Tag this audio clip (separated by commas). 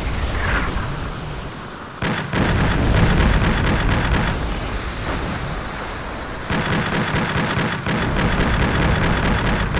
Boom, Music